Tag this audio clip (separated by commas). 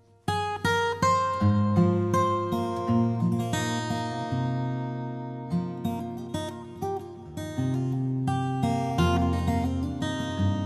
Plucked string instrument, Musical instrument, Music, Guitar, Acoustic guitar